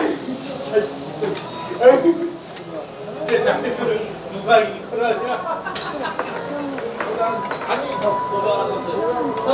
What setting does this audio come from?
restaurant